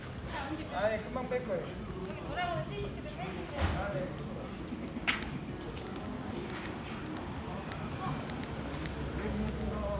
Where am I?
in a residential area